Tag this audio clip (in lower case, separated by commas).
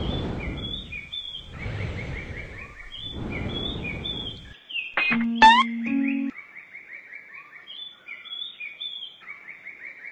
tweet, bird song, bird